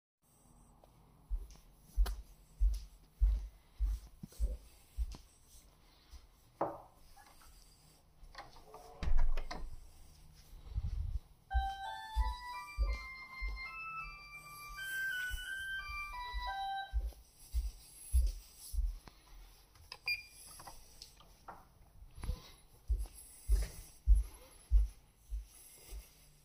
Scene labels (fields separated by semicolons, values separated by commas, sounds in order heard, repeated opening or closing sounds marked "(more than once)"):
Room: office; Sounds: footsteps, door, bell ringing